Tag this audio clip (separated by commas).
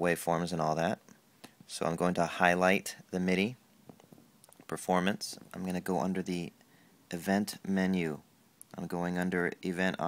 Speech